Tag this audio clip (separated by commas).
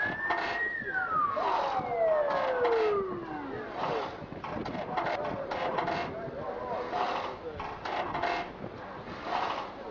Speech